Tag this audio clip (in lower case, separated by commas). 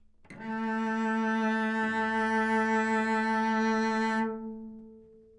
music, bowed string instrument, musical instrument